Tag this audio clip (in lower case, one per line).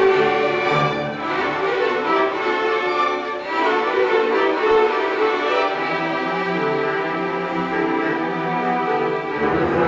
orchestra
music